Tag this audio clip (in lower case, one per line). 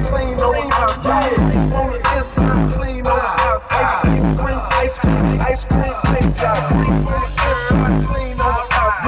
music